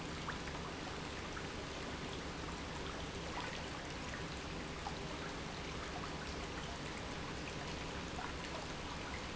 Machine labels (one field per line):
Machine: pump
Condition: normal